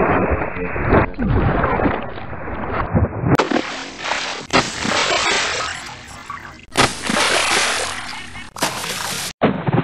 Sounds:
Sound effect

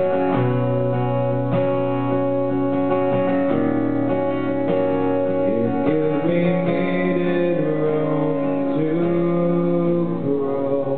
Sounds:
Music

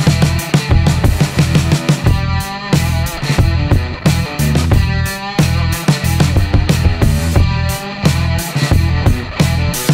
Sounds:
Music

